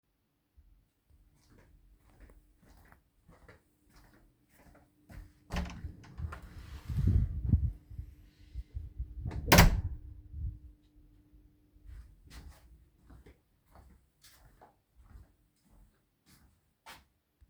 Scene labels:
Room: hallway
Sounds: footsteps, door (more than once)

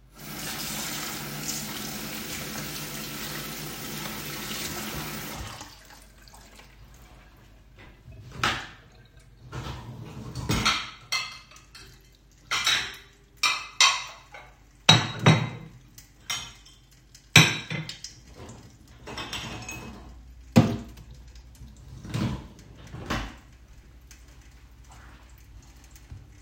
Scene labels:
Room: kitchen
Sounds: running water, cutlery and dishes

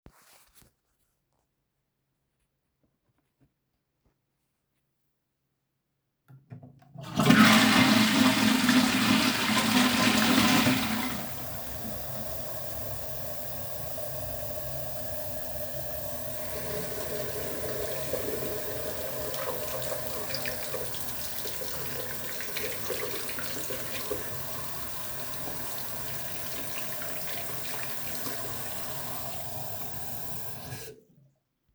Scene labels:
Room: bathroom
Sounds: toilet flushing, running water

